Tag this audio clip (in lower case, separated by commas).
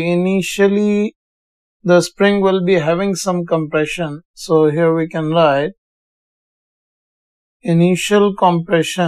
speech